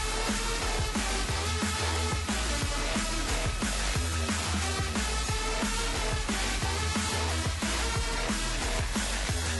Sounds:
Music

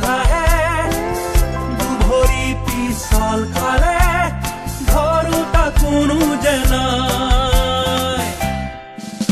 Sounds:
Music of Africa, Music

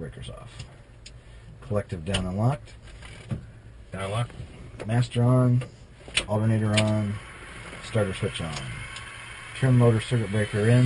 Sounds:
Speech

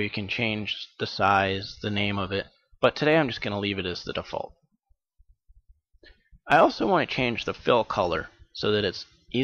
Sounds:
Speech

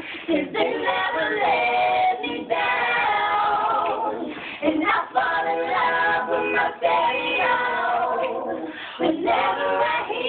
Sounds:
Choir

